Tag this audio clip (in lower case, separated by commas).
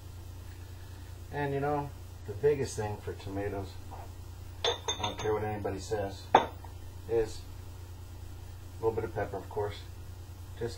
speech